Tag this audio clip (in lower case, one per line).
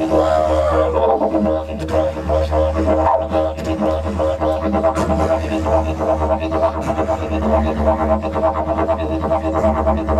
playing didgeridoo